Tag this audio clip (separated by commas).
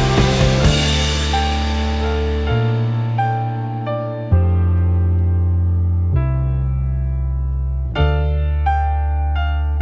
Cymbal